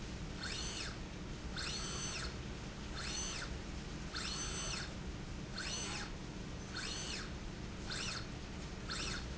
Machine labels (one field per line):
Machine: slide rail